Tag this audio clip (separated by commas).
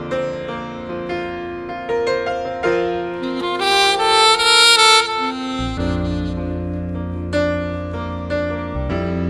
Music, Tender music, Piano, Musical instrument, Saxophone